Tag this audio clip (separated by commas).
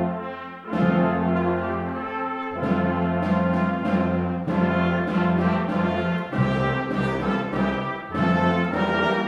Christmas music, Music